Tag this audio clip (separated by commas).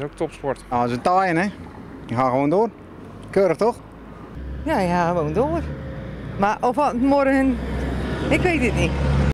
Speech, Vehicle